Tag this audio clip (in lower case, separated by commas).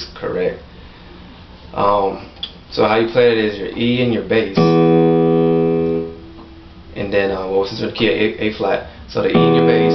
musical instrument, speech, keyboard (musical), piano, music